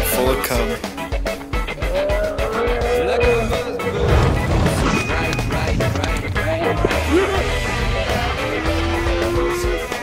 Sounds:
speech, music

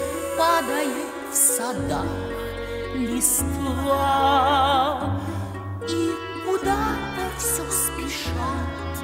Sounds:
music, sad music

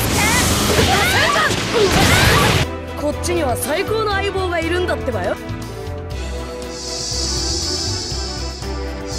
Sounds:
speech, pop, music

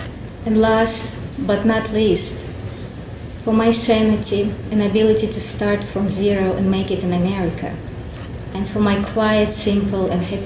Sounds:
female speech, speech

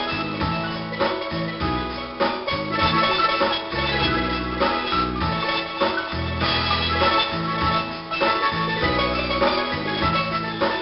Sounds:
musical instrument, bass drum, music, drum, drum kit

